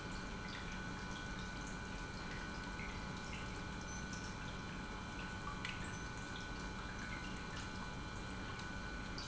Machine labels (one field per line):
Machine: pump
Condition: normal